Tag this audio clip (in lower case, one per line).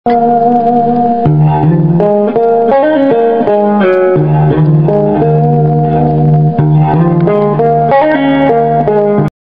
musical instrument
guitar
music